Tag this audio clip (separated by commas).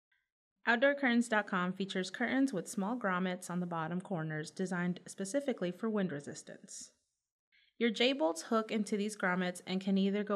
Speech